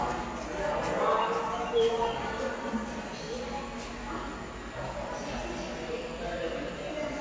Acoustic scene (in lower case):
subway station